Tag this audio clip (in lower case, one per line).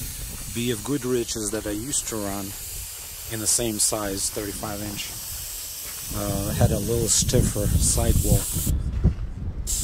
speech